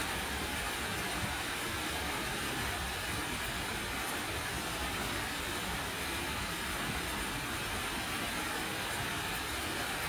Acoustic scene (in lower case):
park